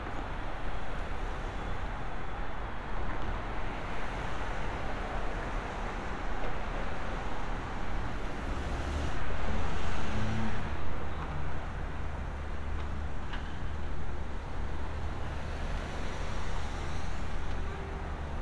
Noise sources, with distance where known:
medium-sounding engine

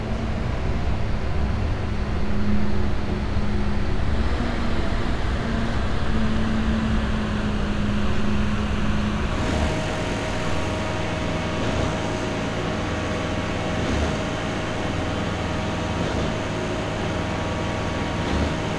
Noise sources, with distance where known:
large-sounding engine, near

